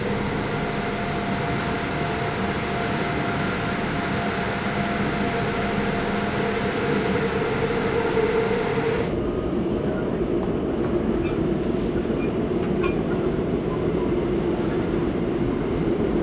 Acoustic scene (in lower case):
subway train